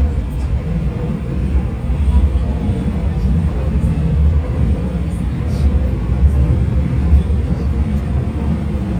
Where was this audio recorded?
on a subway train